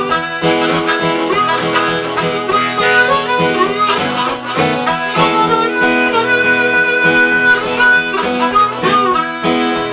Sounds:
music

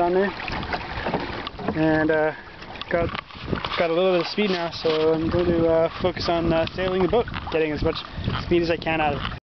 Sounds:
vehicle, canoe, speech

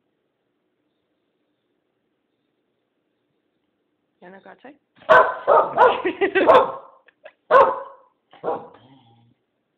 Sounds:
speech

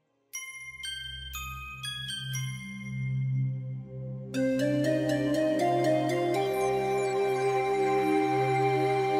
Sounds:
glockenspiel

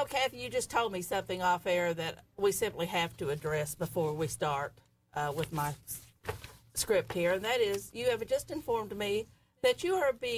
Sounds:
speech

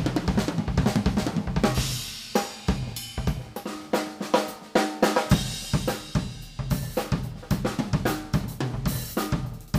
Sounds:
percussion, bass drum, drum, drum roll, drum kit, snare drum, rimshot

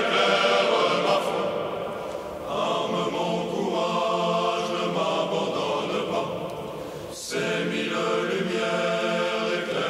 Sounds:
mantra

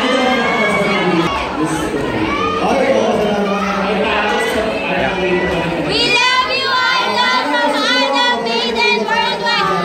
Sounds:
crowd

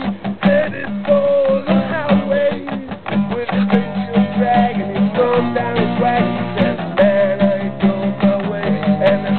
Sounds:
music

